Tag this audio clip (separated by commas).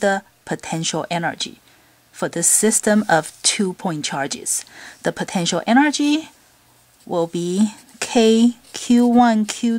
Speech